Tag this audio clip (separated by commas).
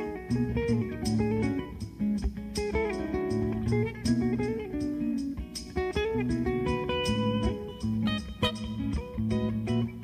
Plucked string instrument, Musical instrument, Strum, Acoustic guitar, Guitar, Music